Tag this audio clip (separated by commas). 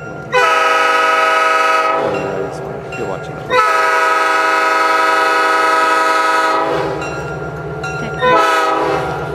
Speech